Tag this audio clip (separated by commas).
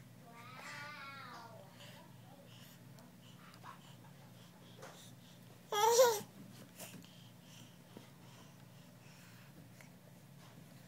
Babbling